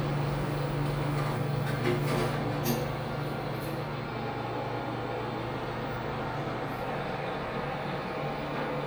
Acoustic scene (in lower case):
elevator